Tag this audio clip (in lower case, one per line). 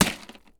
crushing